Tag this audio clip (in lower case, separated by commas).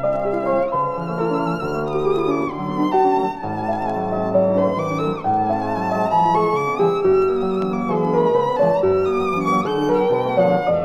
fiddle, musical instrument, music